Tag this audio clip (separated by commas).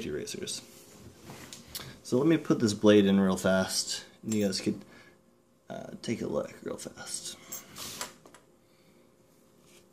Speech